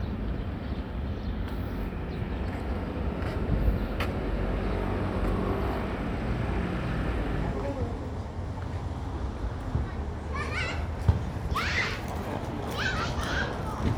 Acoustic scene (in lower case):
residential area